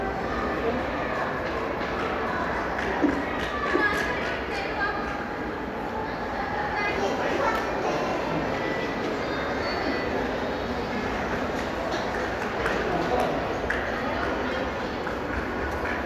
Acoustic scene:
crowded indoor space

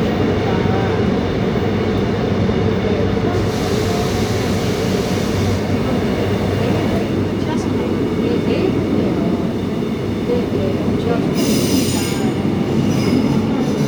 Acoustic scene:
subway train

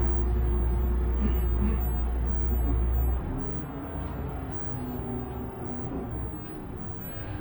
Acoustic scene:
bus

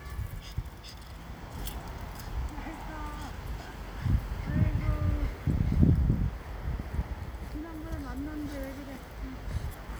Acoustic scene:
residential area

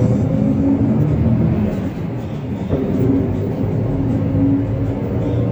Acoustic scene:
bus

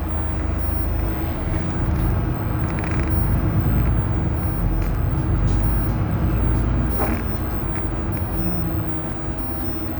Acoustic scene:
bus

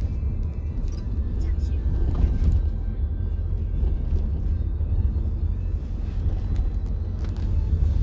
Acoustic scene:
car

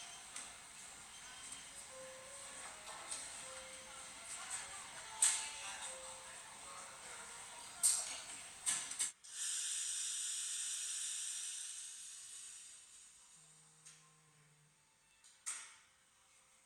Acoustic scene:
cafe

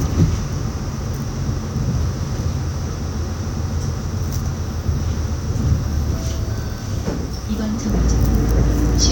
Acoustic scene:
bus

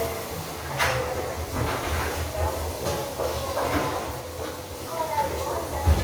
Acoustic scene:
restroom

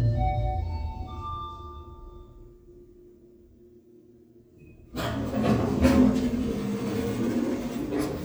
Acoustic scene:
elevator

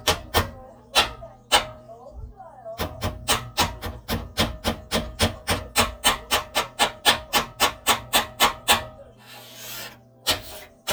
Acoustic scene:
kitchen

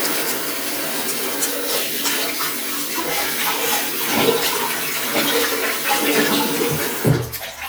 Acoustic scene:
restroom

